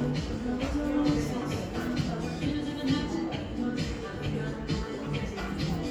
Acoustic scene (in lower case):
cafe